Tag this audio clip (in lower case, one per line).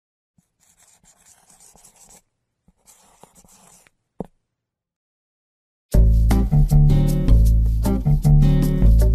music